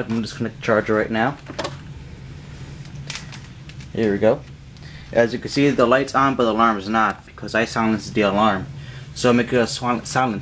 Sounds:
Speech

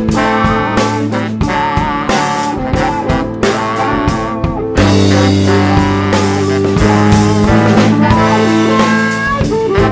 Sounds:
Music

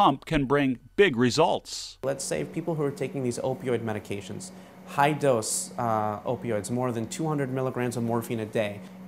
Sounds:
Speech

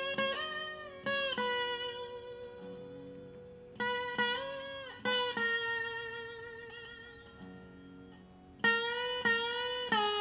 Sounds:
Music

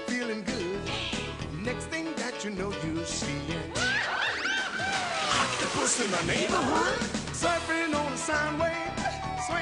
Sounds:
Music

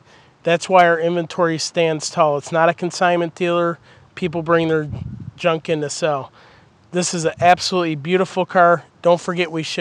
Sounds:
Speech

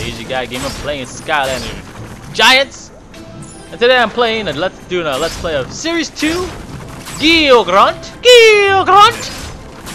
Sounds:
Speech, Music

